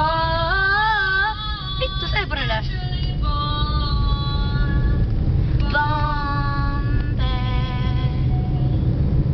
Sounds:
Female singing, Speech

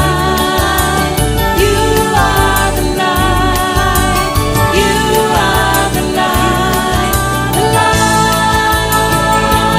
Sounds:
Music, Singing, Christian music

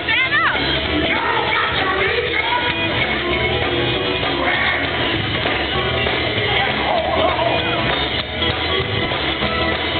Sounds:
Speech, Music, Male singing

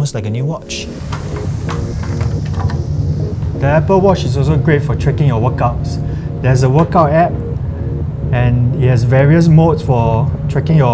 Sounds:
inside a small room, Speech, Music

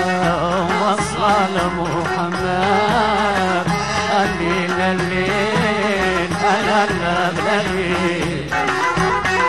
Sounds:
Music

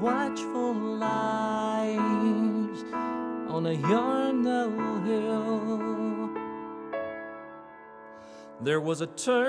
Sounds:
Music

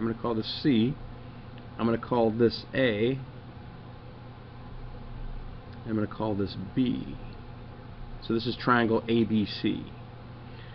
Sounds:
Speech

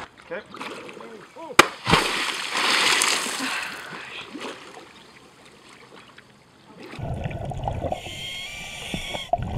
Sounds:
Speech, Splash

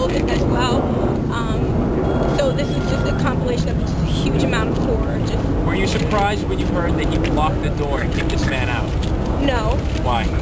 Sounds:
Speech, outside, urban or man-made

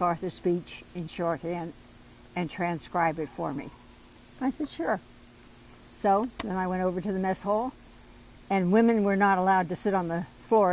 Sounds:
Speech, Narration, Female speech

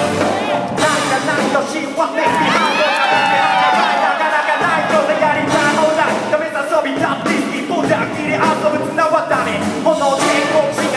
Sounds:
Music

